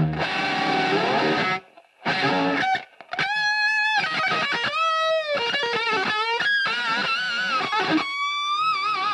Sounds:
Music

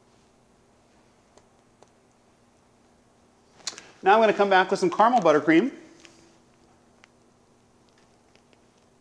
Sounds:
Speech

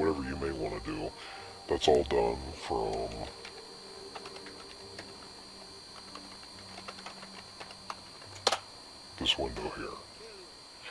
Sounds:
Music, Typewriter, Speech

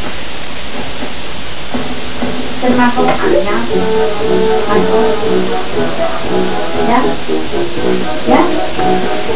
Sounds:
Music, inside a small room, Speech

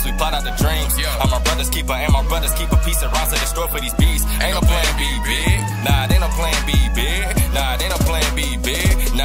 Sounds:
Music

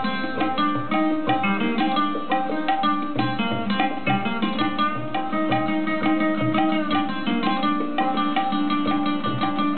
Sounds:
Tabla, Percussion

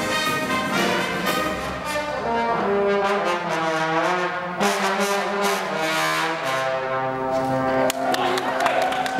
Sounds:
Trombone, Brass instrument, Trumpet

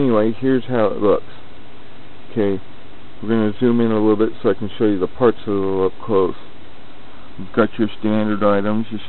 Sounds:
Speech

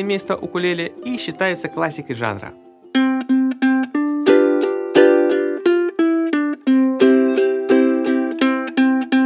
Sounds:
playing ukulele

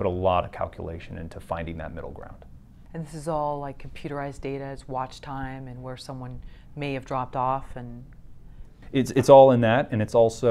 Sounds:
inside a small room, Speech

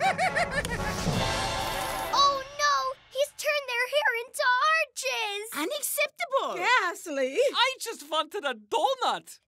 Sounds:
Music, Speech

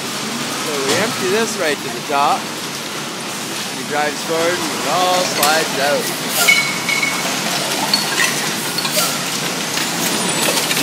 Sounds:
Vehicle, Speech, Air brake, Truck

